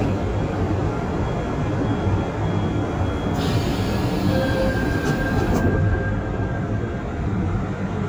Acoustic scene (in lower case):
subway train